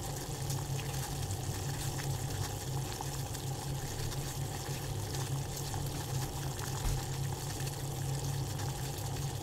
A food item is frying and sizzling